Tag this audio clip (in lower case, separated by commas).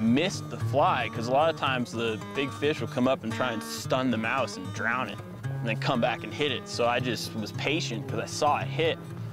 music, speech